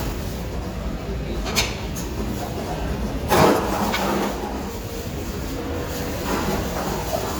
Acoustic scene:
residential area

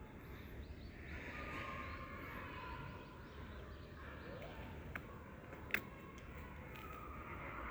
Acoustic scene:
residential area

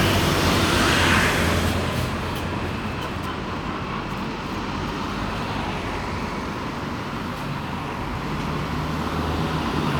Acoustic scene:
street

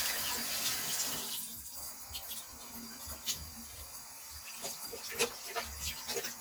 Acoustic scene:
restroom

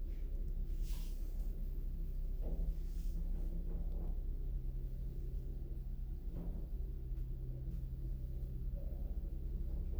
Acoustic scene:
elevator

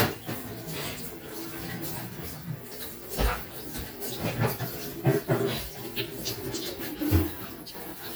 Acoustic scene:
kitchen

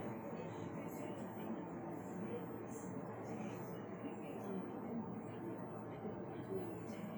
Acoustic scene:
bus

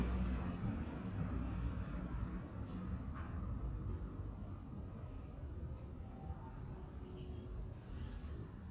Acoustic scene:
residential area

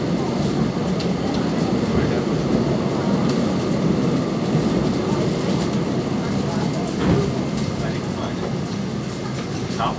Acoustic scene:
subway train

